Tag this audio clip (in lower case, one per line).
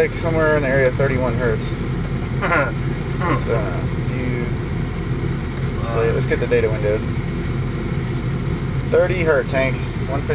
speech